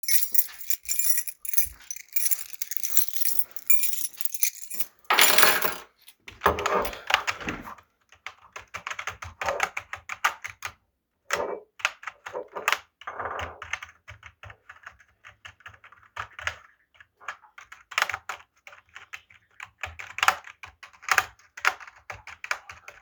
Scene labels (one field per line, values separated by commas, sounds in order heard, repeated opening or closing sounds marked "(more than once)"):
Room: living room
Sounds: keys, keyboard typing